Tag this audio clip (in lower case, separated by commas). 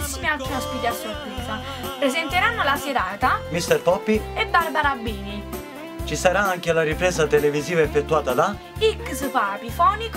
speech, music